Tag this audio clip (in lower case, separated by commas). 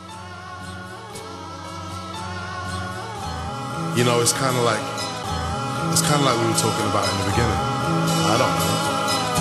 music, electronica